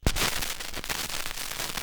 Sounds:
crackle

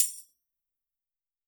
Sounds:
musical instrument
music
tambourine
percussion

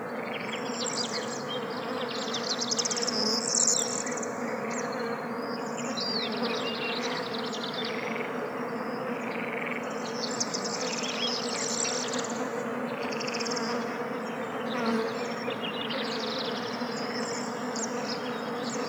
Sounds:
frog
bird
insect
wild animals
animal

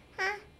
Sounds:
human voice
speech

